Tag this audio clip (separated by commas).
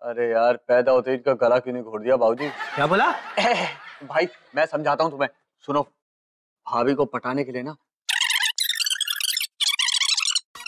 Speech, inside a small room